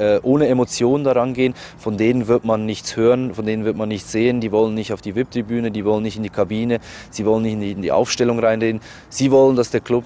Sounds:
Speech

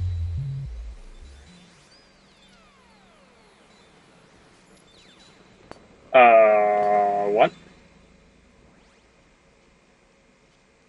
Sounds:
Speech, Music

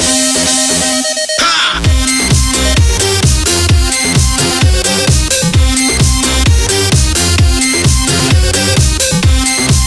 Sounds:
Electronic dance music

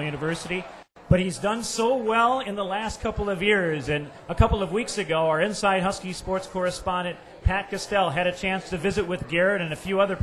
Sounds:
Speech

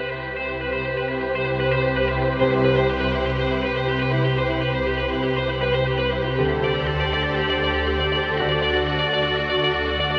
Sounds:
Music

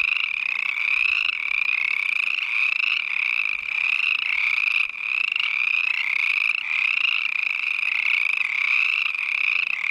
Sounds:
frog croaking

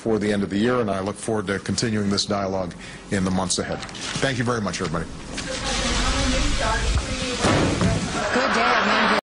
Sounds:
Slam, Speech

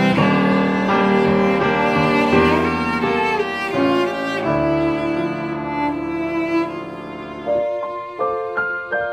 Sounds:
playing cello

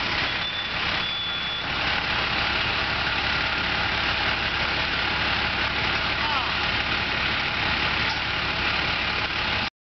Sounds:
Heavy engine (low frequency), Speech, Idling, Vehicle, Engine

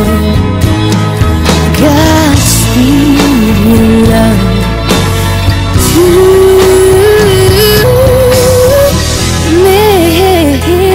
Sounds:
Music, Singing

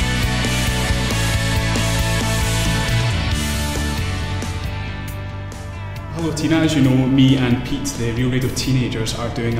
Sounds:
Speech, Music

